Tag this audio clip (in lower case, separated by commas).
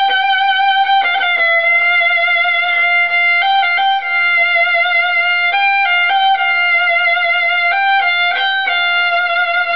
fiddle, music, musical instrument